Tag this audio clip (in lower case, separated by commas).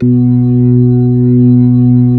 music, musical instrument, keyboard (musical), organ